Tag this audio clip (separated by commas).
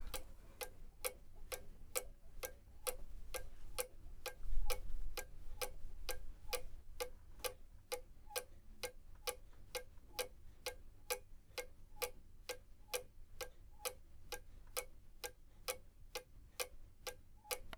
Clock, Mechanisms